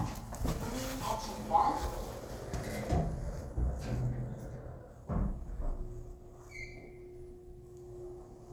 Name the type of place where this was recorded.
elevator